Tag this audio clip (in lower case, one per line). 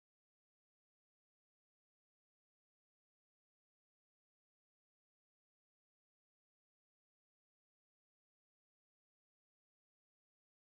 playing guiro